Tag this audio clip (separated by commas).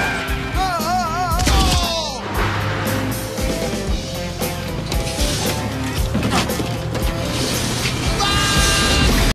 Music